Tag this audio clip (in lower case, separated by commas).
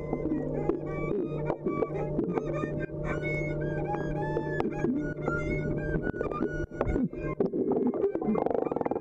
music, musical instrument, fiddle, gurgling